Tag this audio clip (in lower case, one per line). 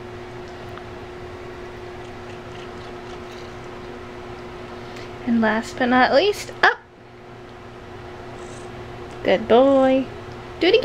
speech